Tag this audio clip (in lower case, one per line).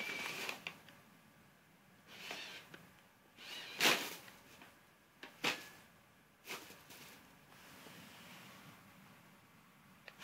cat
pets
animal